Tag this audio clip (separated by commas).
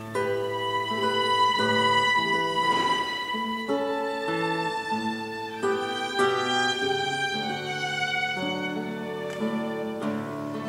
Music, Musical instrument, Guitar, Violin